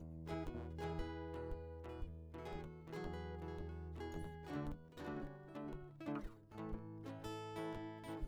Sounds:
guitar, musical instrument, plucked string instrument, music

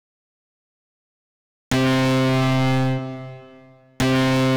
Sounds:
music, organ, keyboard (musical), musical instrument

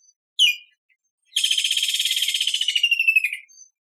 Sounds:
bird, wild animals, animal

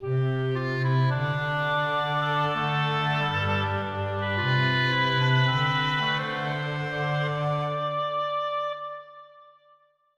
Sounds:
musical instrument, music

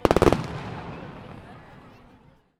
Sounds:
human group actions, explosion, crowd, fireworks

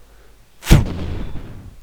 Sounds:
explosion

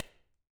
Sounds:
hands, clapping

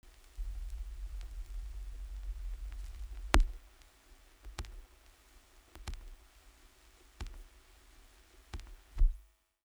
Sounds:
crackle

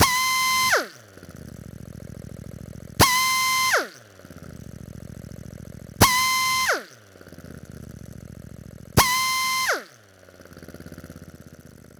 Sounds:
drill, power tool, tools

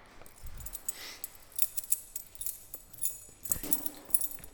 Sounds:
domestic sounds, keys jangling

